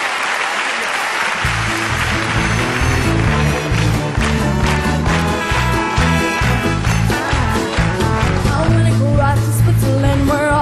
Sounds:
music
yodeling

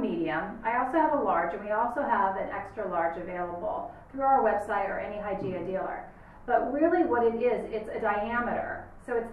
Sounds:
speech

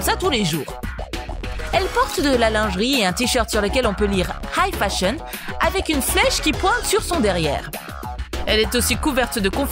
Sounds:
music
speech

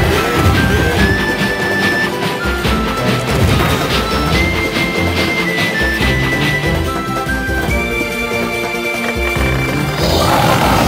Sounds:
video game music

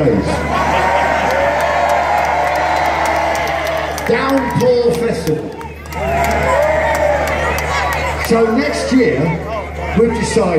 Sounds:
male speech
narration
speech

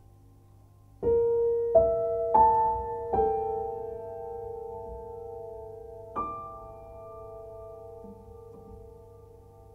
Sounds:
vibraphone

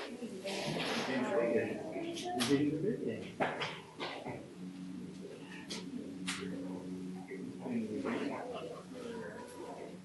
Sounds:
speech

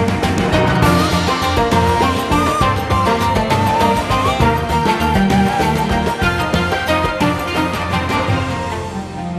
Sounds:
music

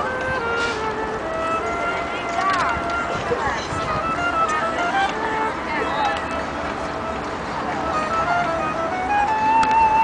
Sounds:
music
speech
flute

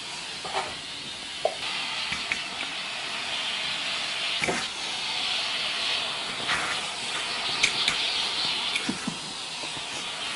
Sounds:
vacuum cleaner

